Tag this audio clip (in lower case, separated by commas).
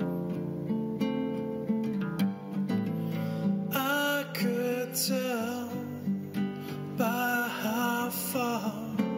guitar, acoustic guitar, musical instrument, plucked string instrument, music